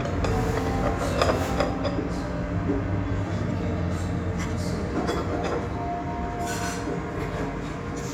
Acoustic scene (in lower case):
restaurant